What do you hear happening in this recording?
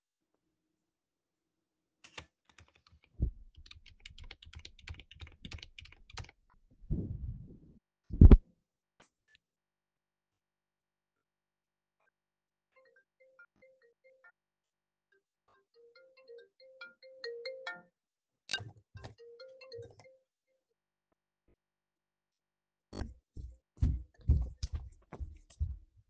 I was typing on my keyboard when my phone started ringing so I stood up and went to answer the call.